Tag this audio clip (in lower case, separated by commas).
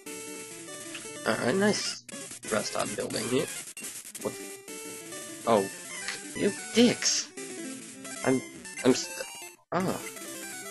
music, speech